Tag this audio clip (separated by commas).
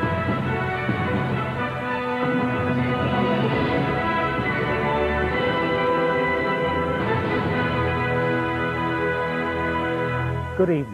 Music